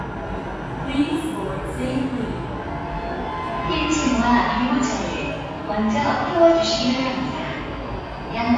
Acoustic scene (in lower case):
subway station